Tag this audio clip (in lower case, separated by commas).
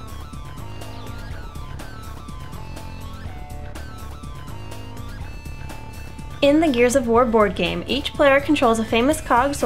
music, speech